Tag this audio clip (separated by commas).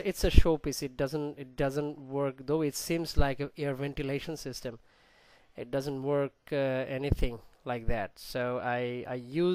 Speech